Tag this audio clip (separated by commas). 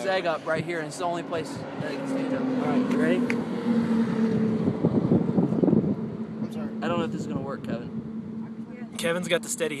outside, urban or man-made, Speech